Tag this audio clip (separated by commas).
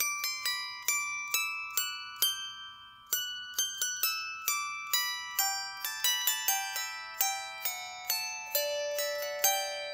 playing zither